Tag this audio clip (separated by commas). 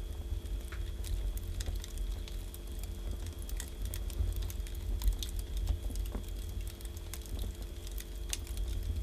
fire crackling